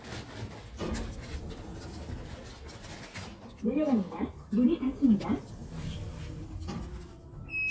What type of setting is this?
elevator